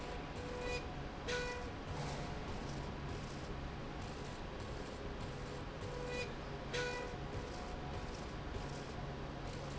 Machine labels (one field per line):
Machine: slide rail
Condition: normal